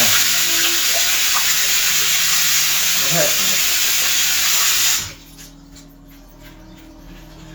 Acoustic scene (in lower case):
restroom